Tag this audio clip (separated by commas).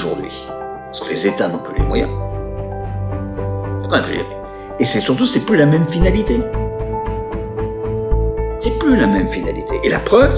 Music, Speech